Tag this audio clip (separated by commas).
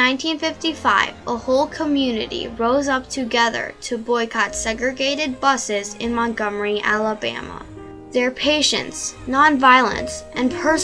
Speech, Music